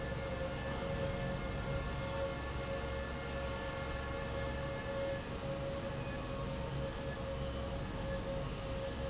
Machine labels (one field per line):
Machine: fan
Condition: normal